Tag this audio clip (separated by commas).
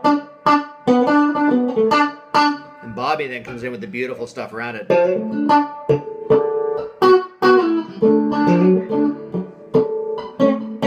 Speech, Music